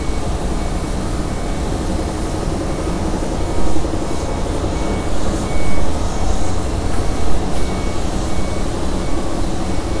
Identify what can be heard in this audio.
large-sounding engine, reverse beeper